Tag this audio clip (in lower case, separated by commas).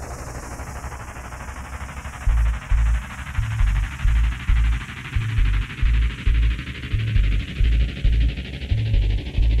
music, sound effect